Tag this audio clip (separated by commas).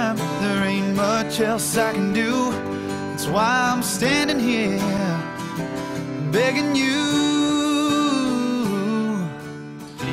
Music